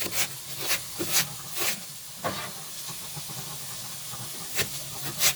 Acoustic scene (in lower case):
kitchen